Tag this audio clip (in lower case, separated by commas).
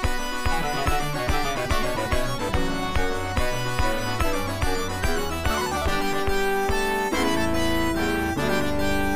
video game music, music